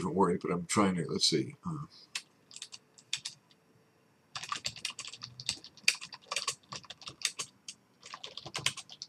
Typing sounds followed by a man speaking